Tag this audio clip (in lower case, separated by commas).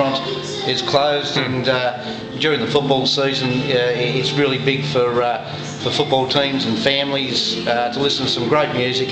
music, speech